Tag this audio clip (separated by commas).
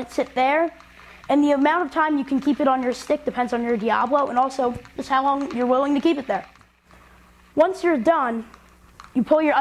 Speech